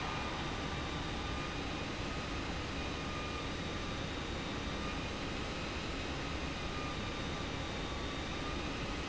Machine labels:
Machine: pump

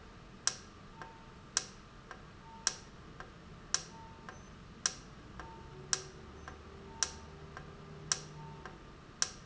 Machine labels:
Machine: valve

